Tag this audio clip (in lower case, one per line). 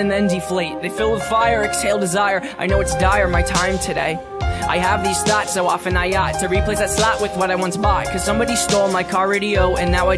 speech
music